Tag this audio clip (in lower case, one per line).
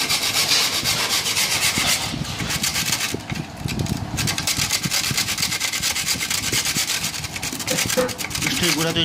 filing (rasp)
rub